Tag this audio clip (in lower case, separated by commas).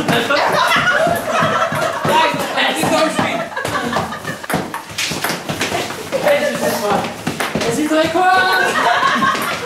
speech